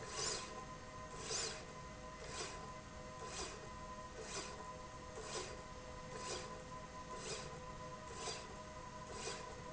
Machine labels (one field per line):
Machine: slide rail